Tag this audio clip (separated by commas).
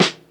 Musical instrument, Snare drum, Music, Percussion, Drum